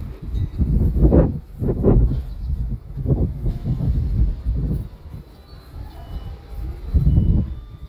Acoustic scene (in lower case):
residential area